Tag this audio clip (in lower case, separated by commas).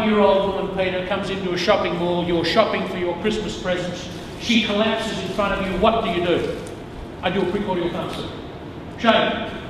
speech